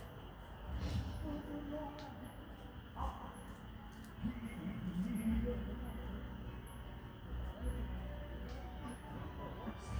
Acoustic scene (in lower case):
park